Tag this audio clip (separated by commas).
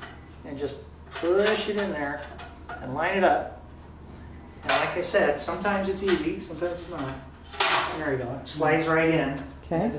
dishes, pots and pans, Speech, inside a small room